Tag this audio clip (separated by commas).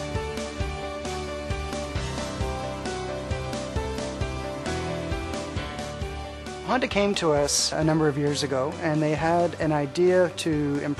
Speech, Music